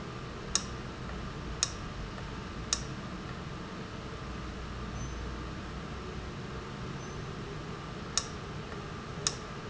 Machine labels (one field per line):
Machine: valve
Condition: abnormal